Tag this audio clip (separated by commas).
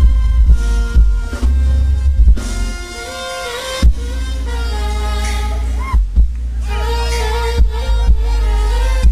Jazz, Music